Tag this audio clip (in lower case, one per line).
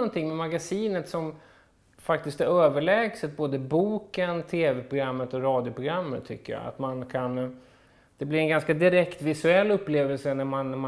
speech